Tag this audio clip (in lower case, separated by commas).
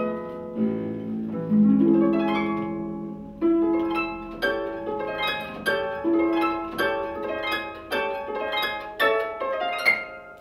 playing harp, pizzicato, harp